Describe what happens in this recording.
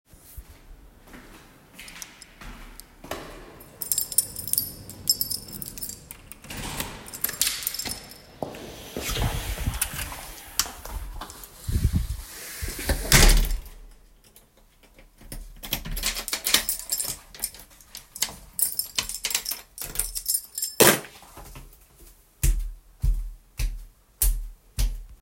I opened the front door and entered the hallway. I handled my keys for a few seconds before putting them on the table, then walked further into the house.